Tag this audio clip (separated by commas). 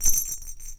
Bell